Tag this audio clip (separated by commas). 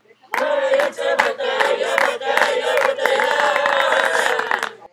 Cheering, Human group actions, Applause, Clapping, Hands